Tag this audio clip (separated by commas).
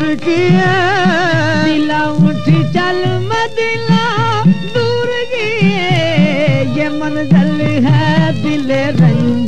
Music